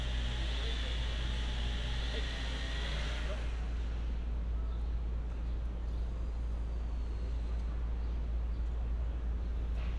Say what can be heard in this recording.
unidentified powered saw